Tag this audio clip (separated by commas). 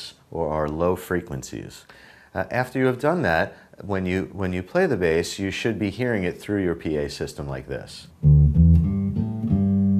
Electronic tuner, inside a small room, Music, Plucked string instrument, Bass guitar, Speech, Guitar, Musical instrument